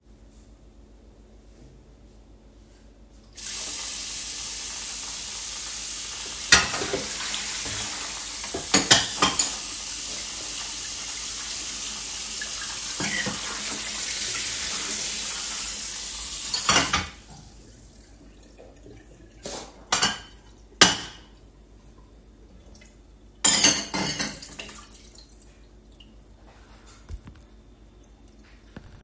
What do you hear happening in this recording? I stood at the kitchen sink and turned on the tap to start washing the dishes. I rinsed several plates and forks. The sound of running water continued throughout the process. (polyphony)